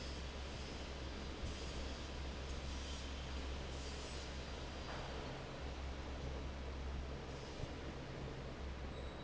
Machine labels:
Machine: fan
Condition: normal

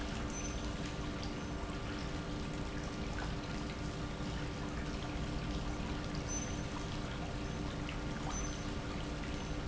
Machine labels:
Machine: pump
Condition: normal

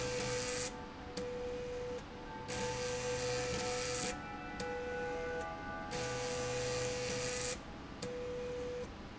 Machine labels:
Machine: slide rail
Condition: abnormal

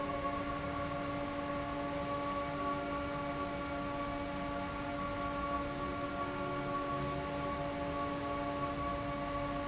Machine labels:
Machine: fan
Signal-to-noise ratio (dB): -6 dB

